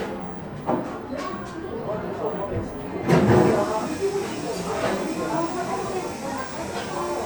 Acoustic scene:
cafe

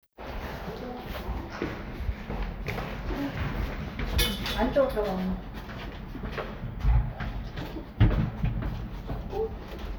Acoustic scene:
elevator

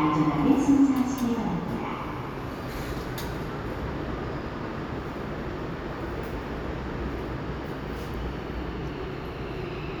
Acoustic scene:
subway station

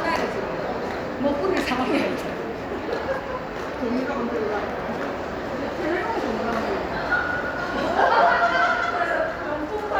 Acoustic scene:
crowded indoor space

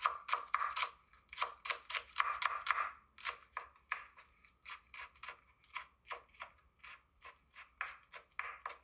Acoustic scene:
kitchen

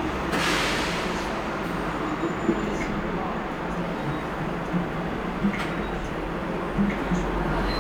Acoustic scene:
cafe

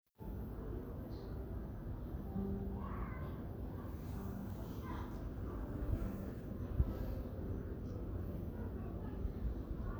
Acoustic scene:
residential area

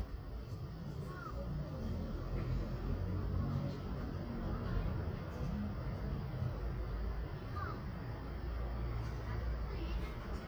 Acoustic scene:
residential area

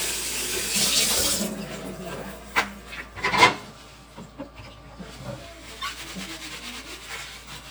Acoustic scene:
kitchen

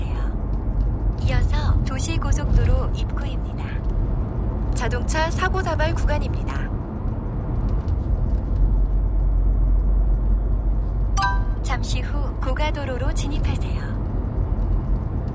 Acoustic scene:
car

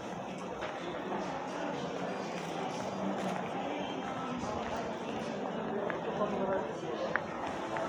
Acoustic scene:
crowded indoor space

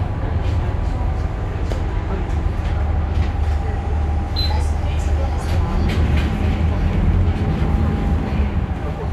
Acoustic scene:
bus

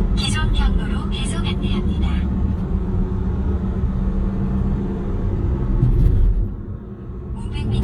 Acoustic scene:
car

